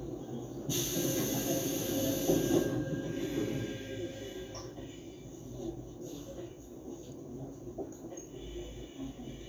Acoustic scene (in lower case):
subway train